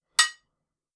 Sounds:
dishes, pots and pans
home sounds

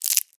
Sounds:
crumpling

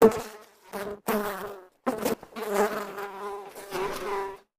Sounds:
insect
animal
wild animals

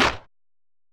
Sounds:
hands
clapping

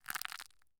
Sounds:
crushing

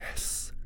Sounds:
whispering
speech
human voice
man speaking

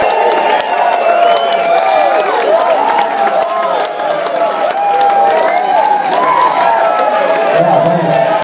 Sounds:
human group actions
human voice
speech
male speech
crowd
clapping
hands
shout
chatter
cheering

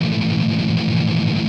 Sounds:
music
strum
plucked string instrument
musical instrument
guitar

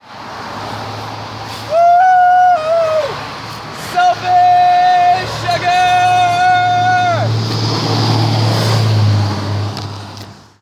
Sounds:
yell
human voice
shout

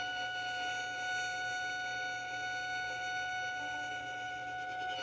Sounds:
bowed string instrument
music
musical instrument

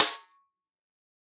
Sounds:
music
musical instrument
percussion
drum
snare drum

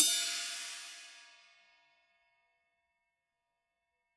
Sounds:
percussion
musical instrument
cymbal
music
hi-hat

